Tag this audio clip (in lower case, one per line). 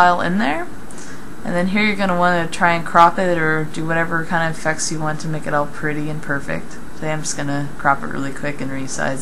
speech